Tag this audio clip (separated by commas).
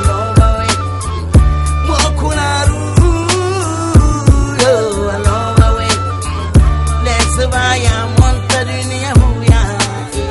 Music